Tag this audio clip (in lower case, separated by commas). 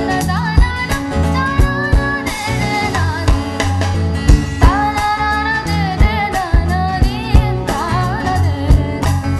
music, singing